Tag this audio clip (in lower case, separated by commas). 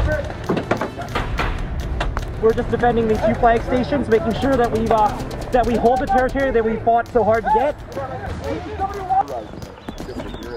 music, speech